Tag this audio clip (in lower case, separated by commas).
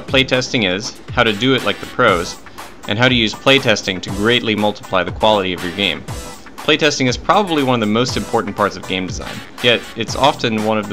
speech, music